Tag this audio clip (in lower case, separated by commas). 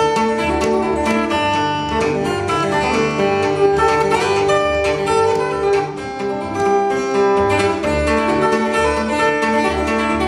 musical instrument, plucked string instrument, flamenco, music, guitar